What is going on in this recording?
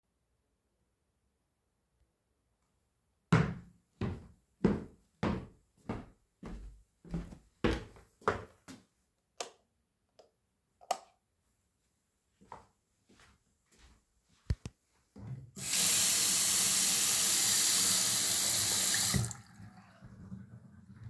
I walked down the hallway into the bathroom and flipped the light switch. Then I turned on the faucet.